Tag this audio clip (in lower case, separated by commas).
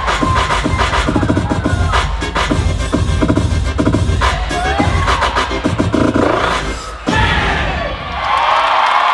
inside a large room or hall, music